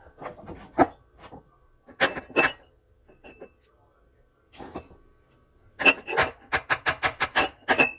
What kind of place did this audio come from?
kitchen